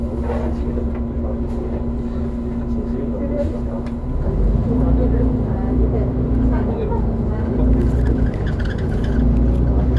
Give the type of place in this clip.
bus